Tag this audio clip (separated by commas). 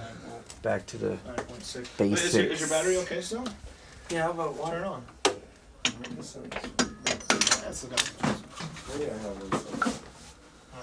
Speech